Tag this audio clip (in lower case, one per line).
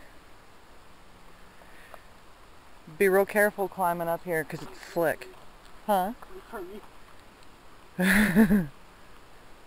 speech